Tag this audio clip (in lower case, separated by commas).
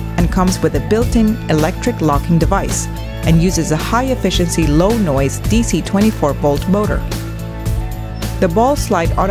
music, speech